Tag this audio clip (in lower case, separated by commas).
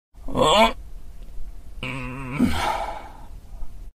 groan